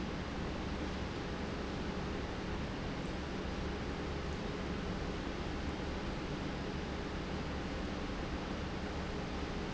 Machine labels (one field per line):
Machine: pump